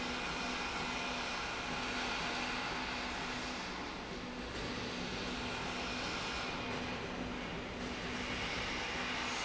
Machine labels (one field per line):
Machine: slide rail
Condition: normal